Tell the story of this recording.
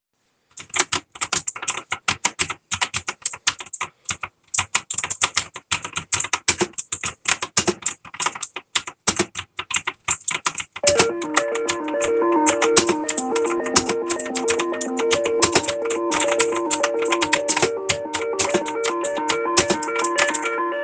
I was typing on the keyboard at my desk. While I was still typing, the phone started ringing. The typing continued briefly during the phone sound.